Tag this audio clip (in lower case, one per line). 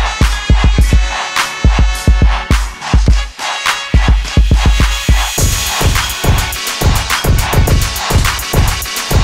music
hip hop music